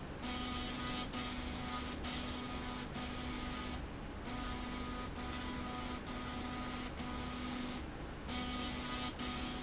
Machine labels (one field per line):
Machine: slide rail